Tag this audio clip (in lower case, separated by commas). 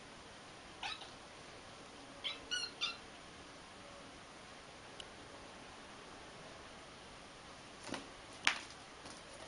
animal, domestic animals, cat, inside a large room or hall